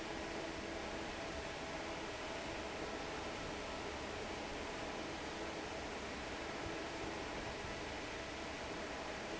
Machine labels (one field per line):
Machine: fan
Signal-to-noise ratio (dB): 6 dB